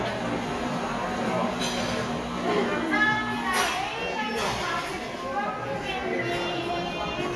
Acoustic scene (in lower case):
cafe